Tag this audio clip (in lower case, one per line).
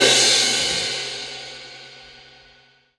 music
crash cymbal
cymbal
percussion
musical instrument